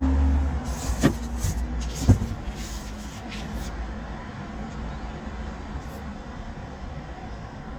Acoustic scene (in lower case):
residential area